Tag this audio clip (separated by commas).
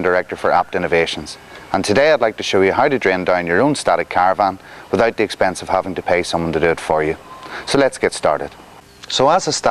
Speech